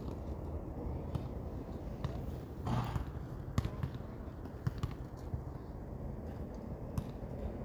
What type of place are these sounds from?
park